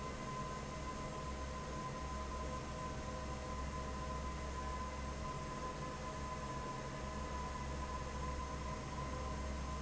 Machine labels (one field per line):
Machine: fan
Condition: normal